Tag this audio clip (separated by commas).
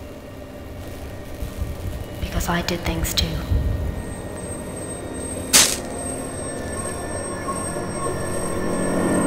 Speech, Chink, Music